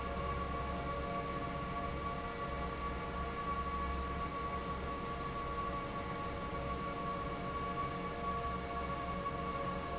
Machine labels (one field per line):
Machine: fan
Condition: normal